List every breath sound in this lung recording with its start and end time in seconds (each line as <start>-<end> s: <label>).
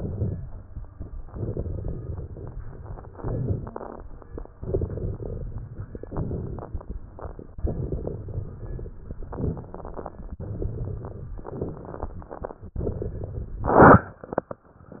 1.17-3.13 s: inhalation
3.12-4.54 s: exhalation
3.63-4.06 s: wheeze
4.58-5.99 s: inhalation
4.58-5.99 s: crackles
6.01-7.54 s: exhalation
6.01-7.54 s: crackles
7.58-9.21 s: inhalation
7.58-9.21 s: crackles
9.22-10.37 s: crackles
9.22-10.39 s: exhalation
10.36-11.43 s: inhalation
10.38-11.41 s: crackles
11.43-12.69 s: exhalation
11.43-12.69 s: crackles